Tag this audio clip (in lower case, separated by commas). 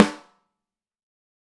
musical instrument, percussion, snare drum, music, drum